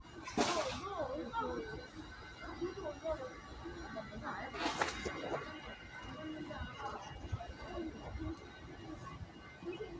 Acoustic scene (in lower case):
residential area